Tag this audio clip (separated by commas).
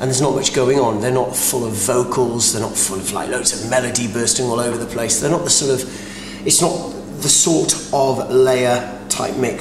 Speech